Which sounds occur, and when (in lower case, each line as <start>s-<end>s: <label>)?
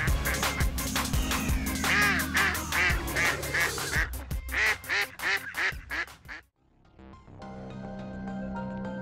0.0s-9.0s: music